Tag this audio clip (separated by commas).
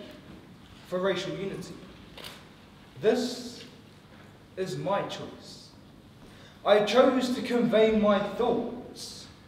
man speaking, monologue, Speech